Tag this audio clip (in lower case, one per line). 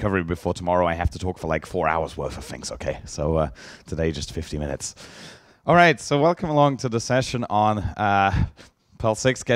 speech